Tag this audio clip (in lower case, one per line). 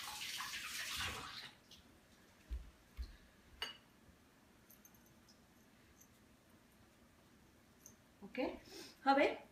inside a small room
speech